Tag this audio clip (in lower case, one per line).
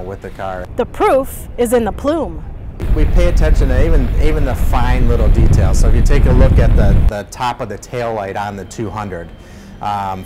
speech